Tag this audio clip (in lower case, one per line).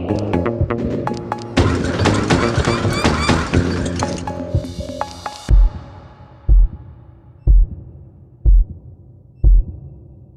music